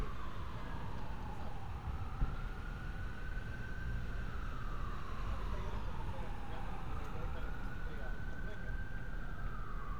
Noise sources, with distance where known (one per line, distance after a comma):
siren, far
unidentified human voice